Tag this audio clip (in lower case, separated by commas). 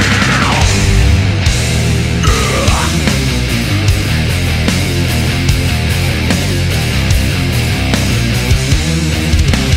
music